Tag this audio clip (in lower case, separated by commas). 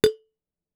glass, chink